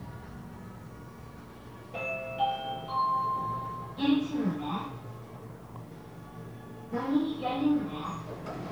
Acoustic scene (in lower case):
elevator